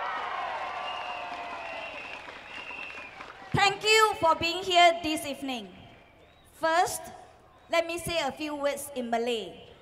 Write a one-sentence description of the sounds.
A crowd cheers and a woman speaks